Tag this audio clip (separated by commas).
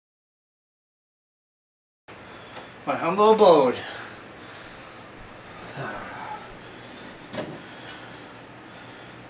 Speech, inside a small room